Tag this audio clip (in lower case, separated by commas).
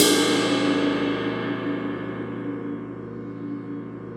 cymbal, percussion, music, crash cymbal, musical instrument